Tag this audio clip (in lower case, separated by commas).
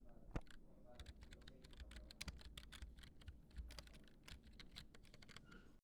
computer keyboard, typing, domestic sounds